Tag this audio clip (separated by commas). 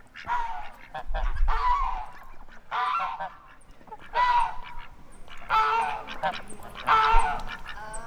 Animal, Fowl, livestock